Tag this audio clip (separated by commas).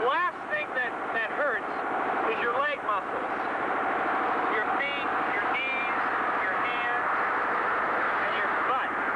Speech, Vehicle